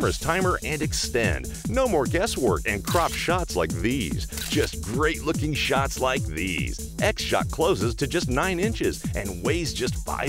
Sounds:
music, speech

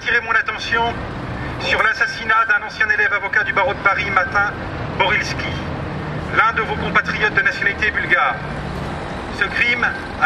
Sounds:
speech

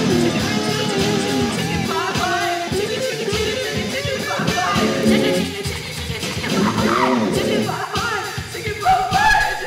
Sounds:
music

